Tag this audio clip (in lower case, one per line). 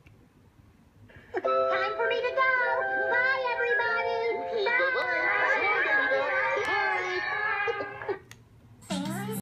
speech
music